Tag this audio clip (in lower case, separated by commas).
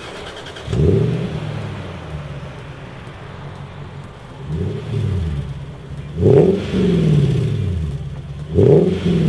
vehicle, revving, car